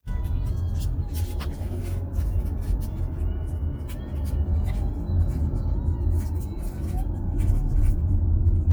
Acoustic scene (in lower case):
car